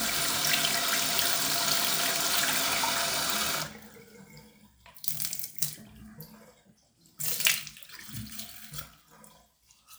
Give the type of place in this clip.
restroom